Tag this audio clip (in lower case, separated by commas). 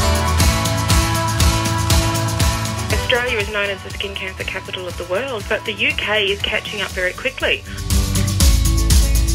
music, speech